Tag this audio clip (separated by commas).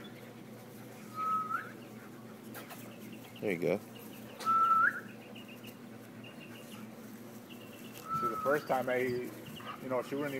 Dog, Speech, Animal, Domestic animals